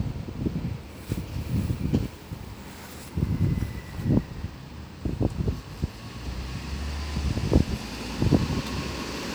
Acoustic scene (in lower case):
street